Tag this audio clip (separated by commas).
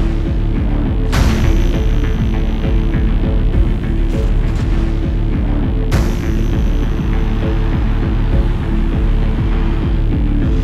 Music, Exciting music, Soundtrack music